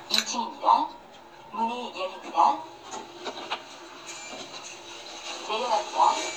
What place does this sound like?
elevator